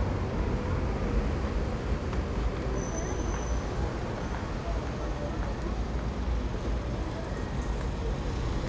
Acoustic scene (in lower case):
street